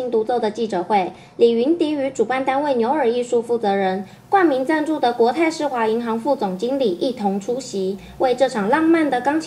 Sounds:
Speech

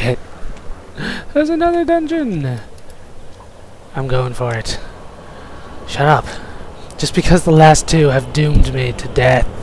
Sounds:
Speech

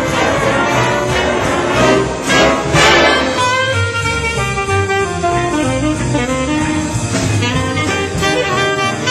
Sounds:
Orchestra, Percussion, Musical instrument, Saxophone, Brass instrument, Music

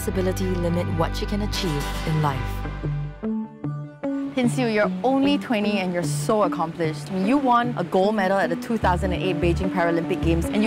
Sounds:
Speech, Music

